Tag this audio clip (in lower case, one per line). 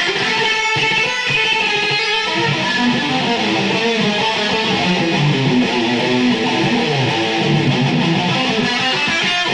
strum
plucked string instrument
acoustic guitar
bass guitar
guitar
electric guitar
music
musical instrument